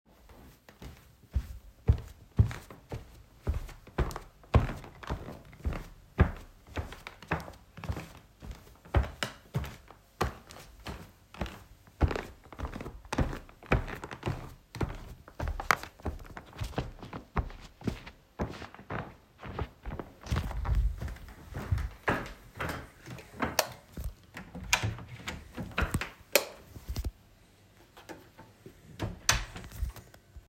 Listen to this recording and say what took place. Stepping through the kitchen and turned off the light when I left.